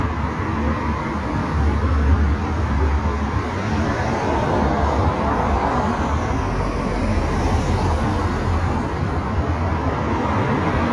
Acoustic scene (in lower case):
street